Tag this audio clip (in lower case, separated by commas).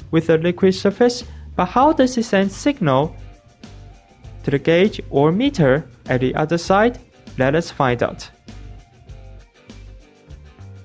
speech, music